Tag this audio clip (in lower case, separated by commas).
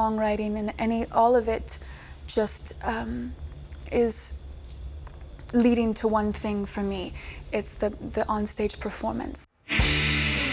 music, speech